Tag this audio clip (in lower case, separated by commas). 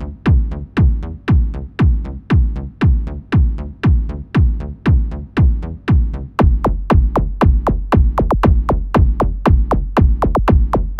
music